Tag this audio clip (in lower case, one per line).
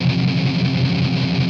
guitar
plucked string instrument
strum
music
musical instrument